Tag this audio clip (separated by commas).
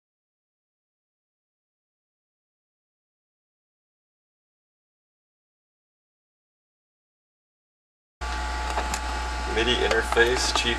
Speech